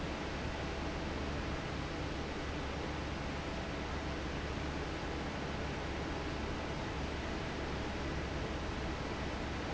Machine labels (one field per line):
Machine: fan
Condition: normal